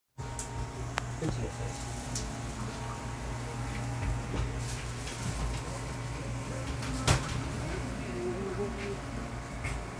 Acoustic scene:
cafe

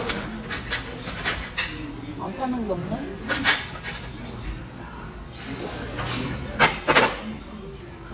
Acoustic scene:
restaurant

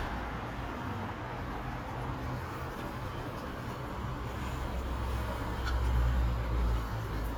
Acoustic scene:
residential area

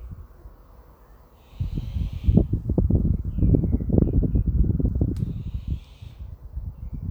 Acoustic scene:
residential area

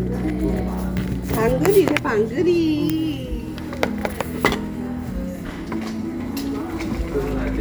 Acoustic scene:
crowded indoor space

